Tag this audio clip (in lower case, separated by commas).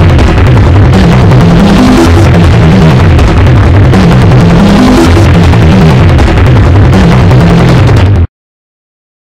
music